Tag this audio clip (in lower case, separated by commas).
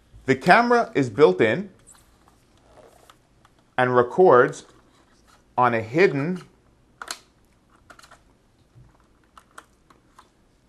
speech